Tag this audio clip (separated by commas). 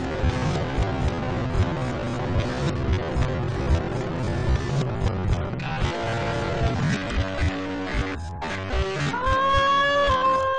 Guitar, Plucked string instrument, Electric guitar, Bass guitar, Musical instrument, Music